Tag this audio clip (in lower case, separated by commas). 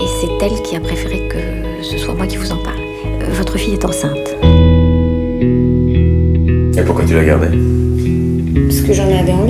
inside a small room, music, speech